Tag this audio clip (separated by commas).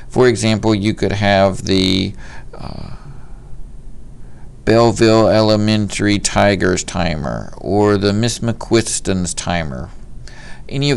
Speech